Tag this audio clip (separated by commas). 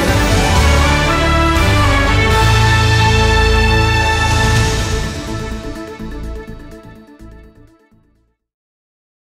Music